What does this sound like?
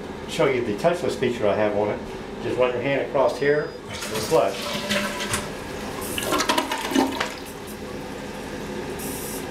A man speaking, beeping, toilet flushing